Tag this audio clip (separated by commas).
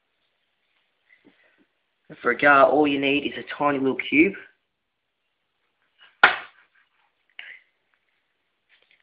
inside a small room, Speech